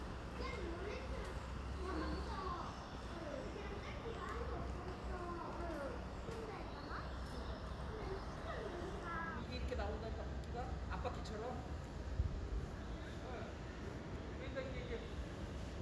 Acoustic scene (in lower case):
residential area